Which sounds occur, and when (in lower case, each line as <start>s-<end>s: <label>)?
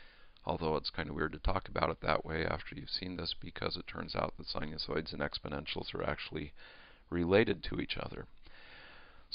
0.0s-0.3s: breathing
0.0s-9.3s: background noise
0.4s-6.6s: man speaking
6.6s-7.1s: breathing
7.1s-8.3s: man speaking
8.4s-9.3s: breathing